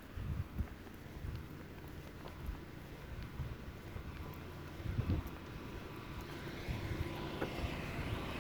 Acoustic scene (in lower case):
residential area